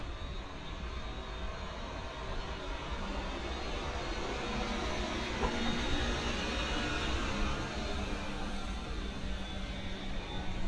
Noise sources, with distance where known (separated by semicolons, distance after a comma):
large-sounding engine, near